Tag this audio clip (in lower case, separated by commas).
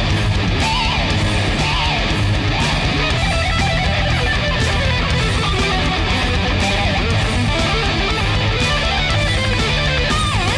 strum, plucked string instrument, musical instrument, guitar, music